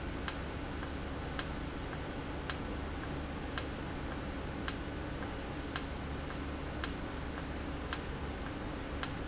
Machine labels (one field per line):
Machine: valve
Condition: normal